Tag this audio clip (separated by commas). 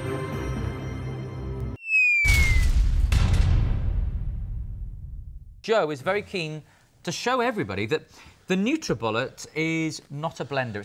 Music, Speech